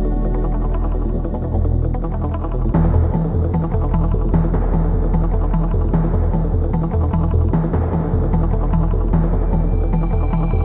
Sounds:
video game music, music

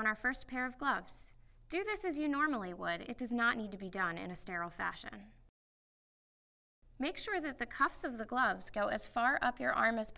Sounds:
speech

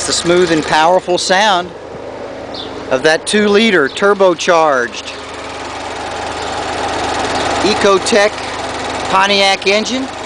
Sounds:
speech, car, vehicle

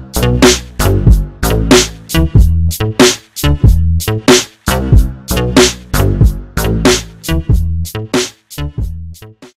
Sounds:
music

